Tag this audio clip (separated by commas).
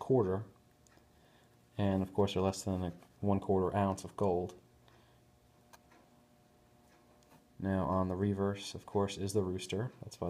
Speech